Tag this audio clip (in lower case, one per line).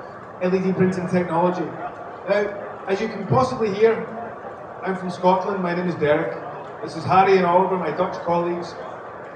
speech